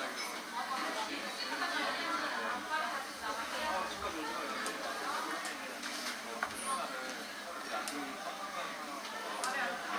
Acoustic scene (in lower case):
cafe